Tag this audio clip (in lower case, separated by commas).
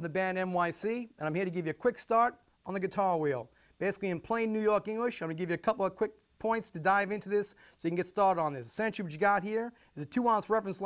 speech